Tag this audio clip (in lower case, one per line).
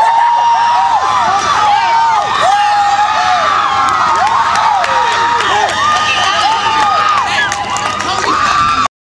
speech